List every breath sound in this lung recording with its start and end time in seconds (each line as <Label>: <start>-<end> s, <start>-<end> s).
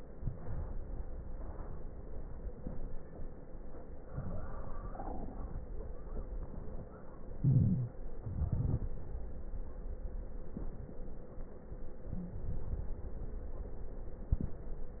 Inhalation: 0.14-1.16 s, 7.06-7.98 s
Exhalation: 7.96-9.03 s
Wheeze: 7.39-7.94 s, 12.13-12.42 s
Crackles: 0.14-1.16 s, 7.96-9.03 s